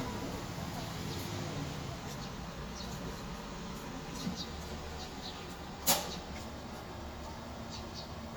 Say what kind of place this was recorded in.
residential area